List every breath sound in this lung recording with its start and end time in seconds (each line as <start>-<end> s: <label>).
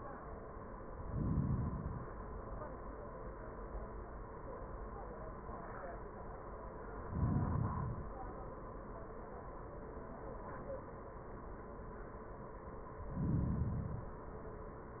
0.90-2.16 s: inhalation
7.02-8.28 s: inhalation
13.02-14.28 s: inhalation